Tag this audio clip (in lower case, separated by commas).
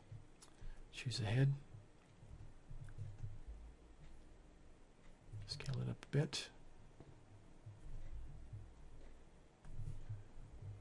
speech